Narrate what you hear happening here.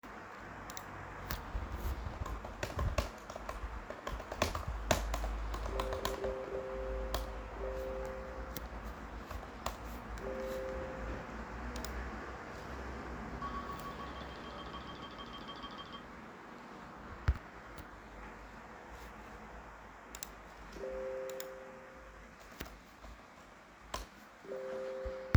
The phone was placed on the desk while I typed on my laptop keyboard. During typing, multiple phone notifications and ringtone occurred and overlapped with the keyboard sound. Wind and faint sounds from outside the window are audible in the background.